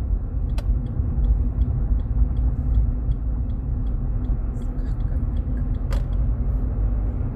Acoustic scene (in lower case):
car